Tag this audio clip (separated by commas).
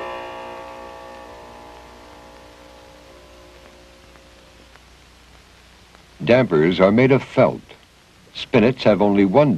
Speech, Musical instrument